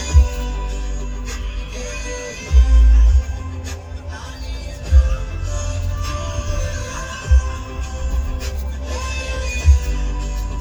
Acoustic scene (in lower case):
car